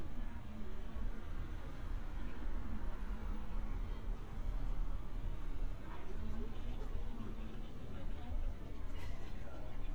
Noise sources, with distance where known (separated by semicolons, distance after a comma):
engine of unclear size; person or small group talking